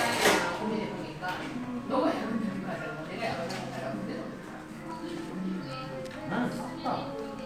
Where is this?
in a crowded indoor space